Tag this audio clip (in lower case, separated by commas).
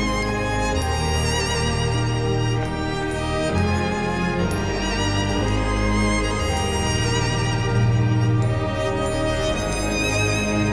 music